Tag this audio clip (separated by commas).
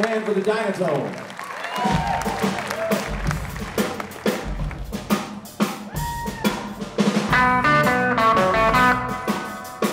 Speech, Blues, Music